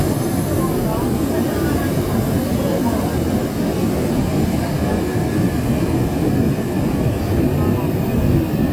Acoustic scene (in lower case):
subway train